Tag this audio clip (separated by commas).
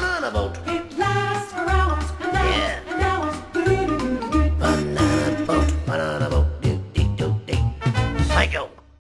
Speech, Music